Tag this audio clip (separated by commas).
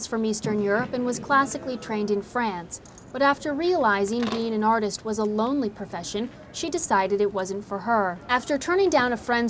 Speech